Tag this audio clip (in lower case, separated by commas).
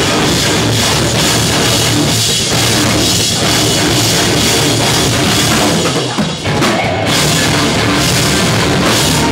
rock music, music